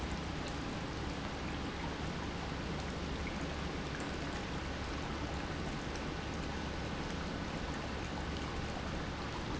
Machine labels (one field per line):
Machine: pump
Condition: normal